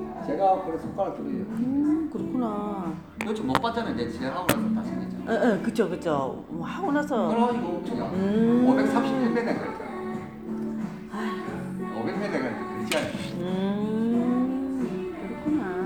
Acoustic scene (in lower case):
cafe